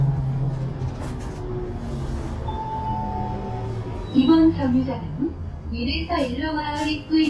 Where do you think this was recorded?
on a bus